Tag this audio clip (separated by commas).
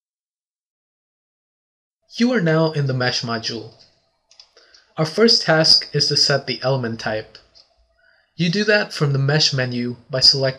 Speech